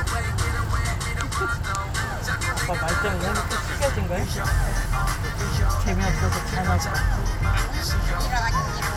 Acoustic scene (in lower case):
car